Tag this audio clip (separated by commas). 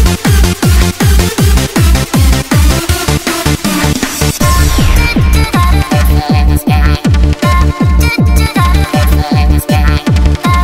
Electronic music, Techno, Soundtrack music, Trance music, Music